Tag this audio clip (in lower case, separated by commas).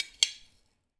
silverware, tap, domestic sounds